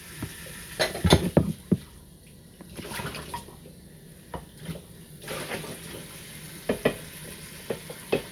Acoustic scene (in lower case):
kitchen